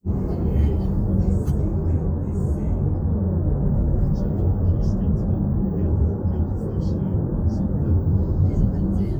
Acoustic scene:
car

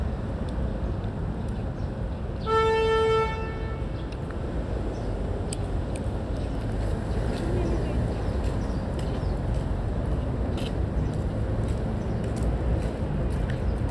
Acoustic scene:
residential area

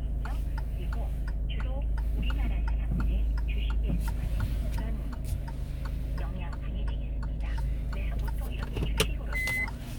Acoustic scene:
car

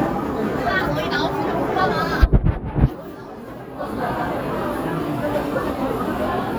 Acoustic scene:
restaurant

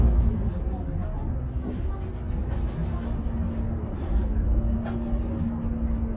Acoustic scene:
bus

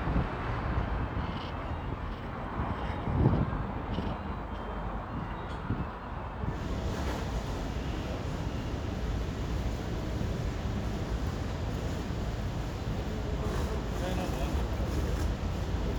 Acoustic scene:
residential area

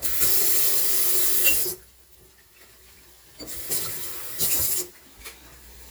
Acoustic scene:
kitchen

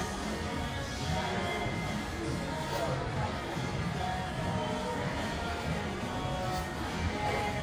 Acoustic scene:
restaurant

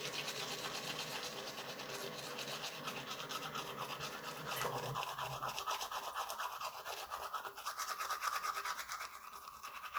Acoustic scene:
restroom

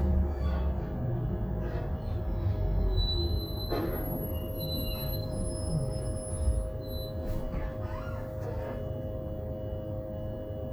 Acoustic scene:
bus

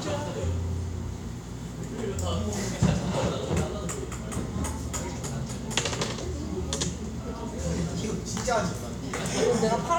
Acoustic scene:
cafe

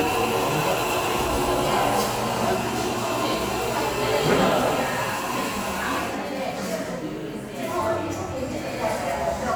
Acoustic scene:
cafe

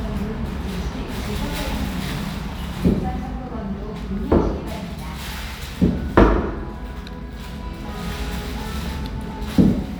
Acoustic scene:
restaurant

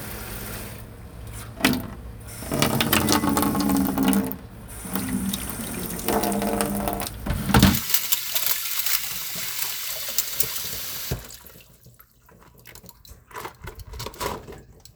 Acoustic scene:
kitchen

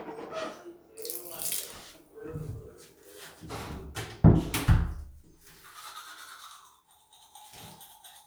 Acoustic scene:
restroom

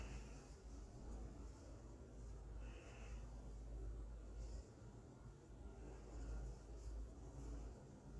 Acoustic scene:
elevator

